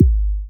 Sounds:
Bass drum, Drum, Percussion, Musical instrument, Music

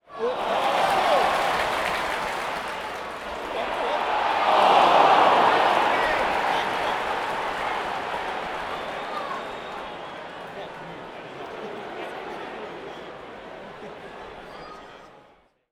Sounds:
Human group actions, Cheering

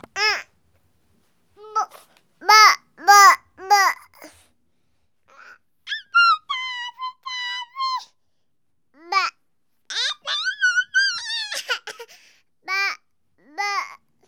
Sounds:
Speech, Human voice

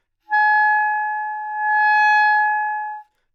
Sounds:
Musical instrument, woodwind instrument, Music

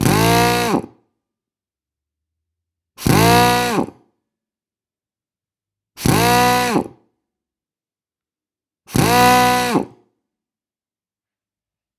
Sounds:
Drill, Tools, Power tool

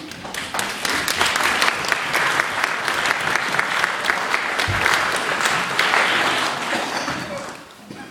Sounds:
Applause, Human group actions

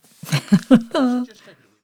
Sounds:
Laughter, Human voice, Giggle

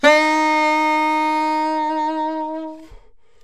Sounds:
Musical instrument, Music, Wind instrument

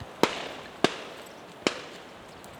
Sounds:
Gunshot, Explosion

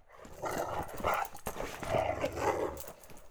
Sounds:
pets, Dog, Growling, Animal

